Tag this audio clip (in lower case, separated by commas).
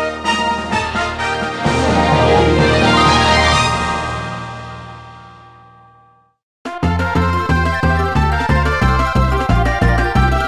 music